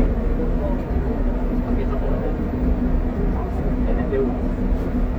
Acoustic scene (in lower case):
bus